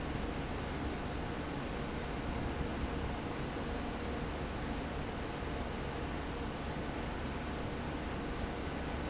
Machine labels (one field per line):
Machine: fan